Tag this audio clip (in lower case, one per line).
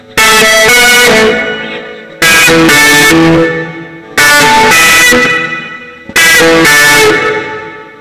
guitar
musical instrument
music
plucked string instrument
electric guitar